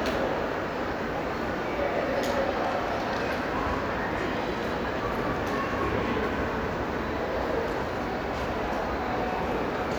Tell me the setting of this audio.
crowded indoor space